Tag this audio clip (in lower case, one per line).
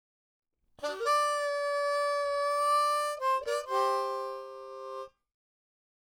musical instrument
harmonica
music